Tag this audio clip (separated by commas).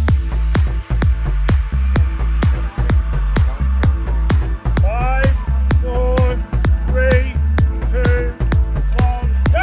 Speech, Music